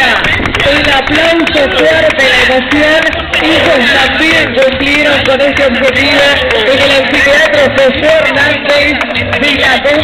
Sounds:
speech
man speaking

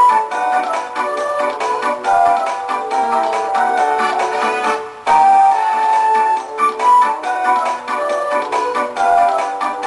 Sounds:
music

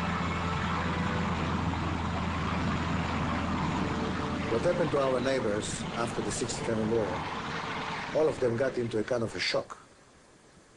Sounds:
vehicle
speech
aircraft

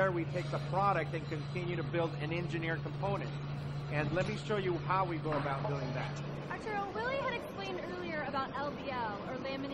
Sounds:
speech

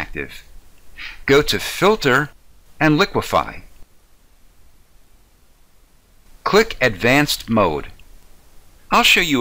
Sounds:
speech
speech synthesizer

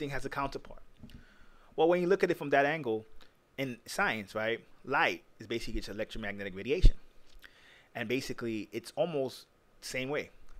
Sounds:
speech

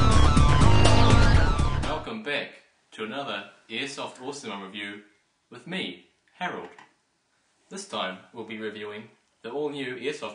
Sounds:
speech
music

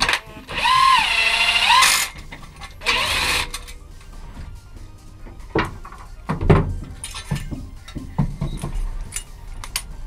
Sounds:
music
tools

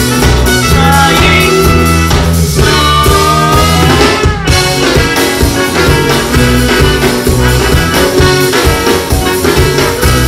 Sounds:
psychedelic rock
music
singing

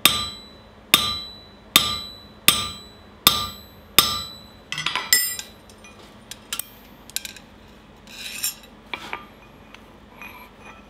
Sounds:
forging swords

